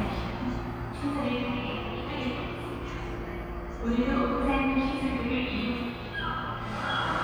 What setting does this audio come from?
subway station